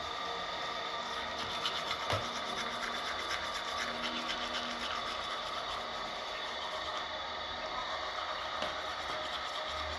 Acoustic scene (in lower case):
restroom